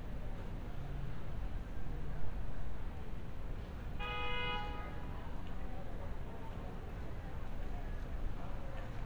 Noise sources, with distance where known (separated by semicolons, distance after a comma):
car horn; person or small group talking, far